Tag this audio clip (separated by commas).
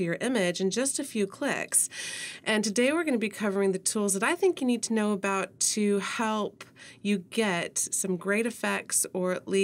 Speech